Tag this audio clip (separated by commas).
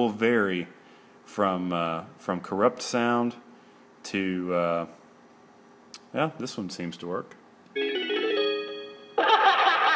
Speech, Music